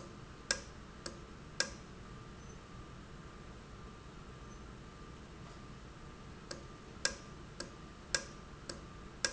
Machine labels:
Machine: valve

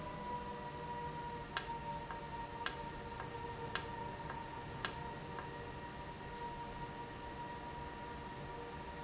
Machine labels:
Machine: valve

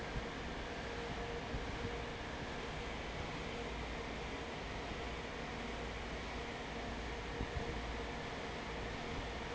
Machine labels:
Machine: fan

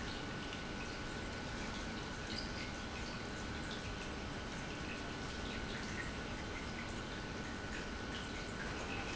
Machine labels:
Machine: pump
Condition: normal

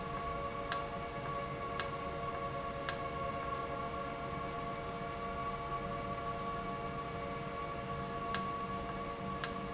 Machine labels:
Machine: valve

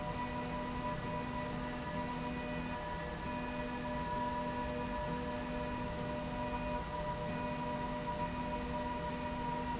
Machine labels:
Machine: slide rail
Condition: normal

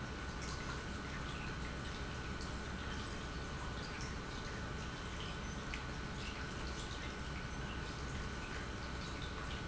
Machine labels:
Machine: pump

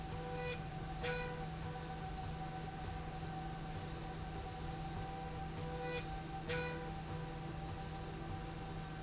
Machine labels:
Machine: slide rail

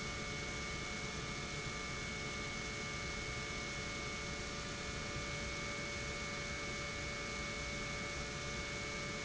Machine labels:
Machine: pump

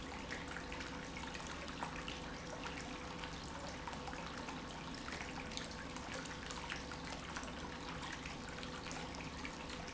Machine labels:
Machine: pump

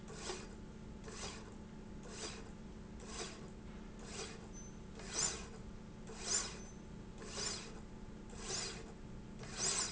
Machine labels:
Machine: slide rail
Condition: normal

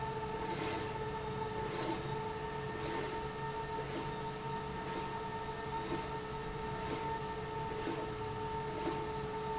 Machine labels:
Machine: slide rail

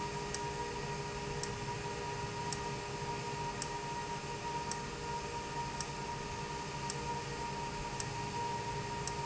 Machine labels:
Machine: valve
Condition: abnormal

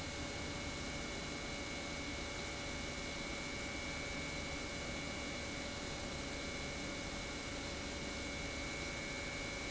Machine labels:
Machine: pump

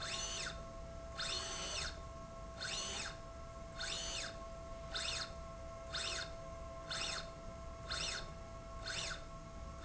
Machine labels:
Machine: slide rail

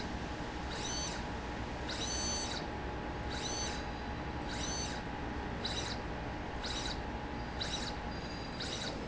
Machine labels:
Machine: slide rail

